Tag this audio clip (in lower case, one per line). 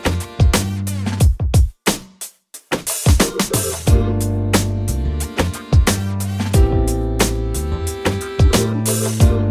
drum and bass